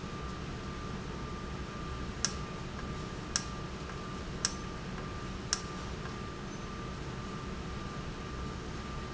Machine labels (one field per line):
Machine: valve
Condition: normal